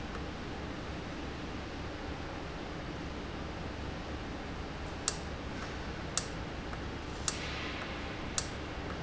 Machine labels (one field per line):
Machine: valve